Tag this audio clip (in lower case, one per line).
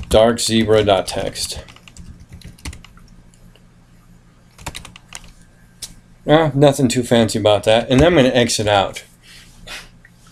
speech